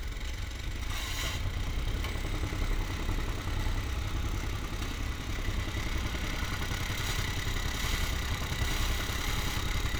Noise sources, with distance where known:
engine of unclear size, near

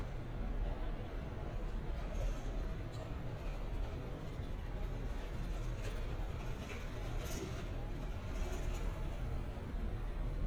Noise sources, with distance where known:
engine of unclear size

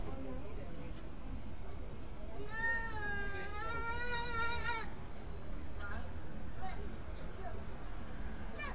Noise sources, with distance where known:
person or small group talking, near

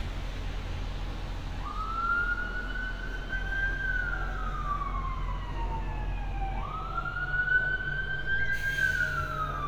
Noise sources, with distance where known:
siren, near

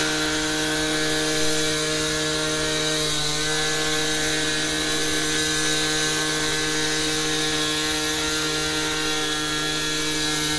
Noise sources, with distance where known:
chainsaw, near

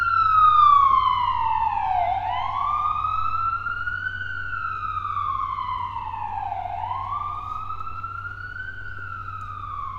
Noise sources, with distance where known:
siren, near

